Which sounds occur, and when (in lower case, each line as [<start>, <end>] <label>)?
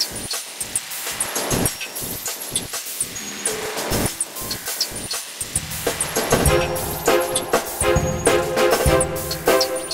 [0.00, 9.93] music